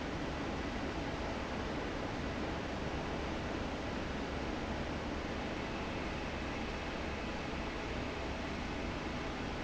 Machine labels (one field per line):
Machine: fan